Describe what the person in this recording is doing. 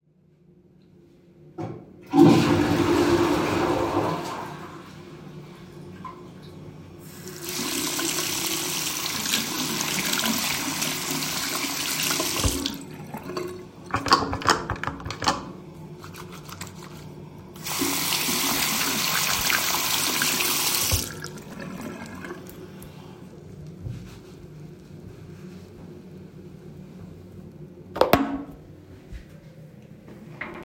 I flushed the toilet and used the sink to wash my hands, I used soap dispenser while doing it, and after washing my hands I used towel to wipe my hands